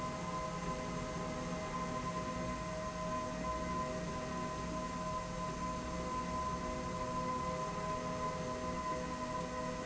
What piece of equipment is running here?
slide rail